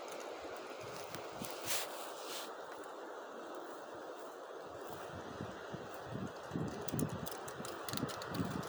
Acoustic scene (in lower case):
residential area